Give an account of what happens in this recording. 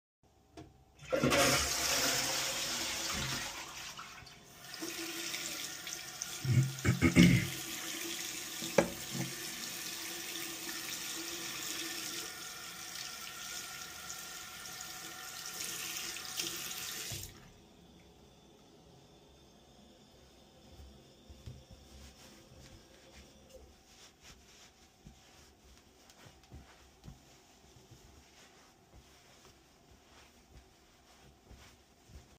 I flushed the toilet. Then, I cleared my throat while washing hands. In the end, I wiped my hands using the towel